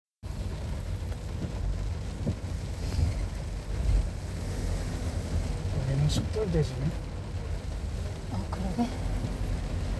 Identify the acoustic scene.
car